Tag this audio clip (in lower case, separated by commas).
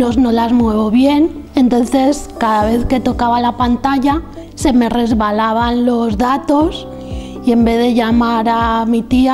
music, speech